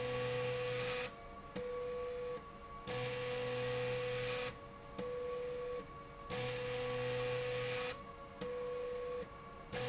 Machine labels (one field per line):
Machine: slide rail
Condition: abnormal